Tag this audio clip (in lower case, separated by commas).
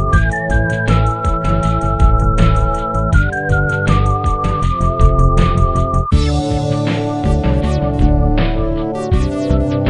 music, pop music